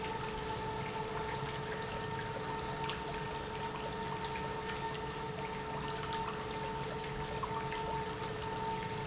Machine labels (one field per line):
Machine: pump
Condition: normal